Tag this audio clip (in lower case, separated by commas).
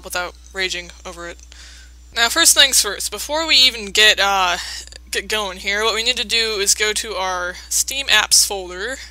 speech